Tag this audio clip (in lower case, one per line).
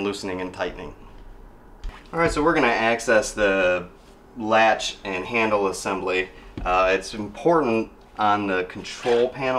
opening or closing drawers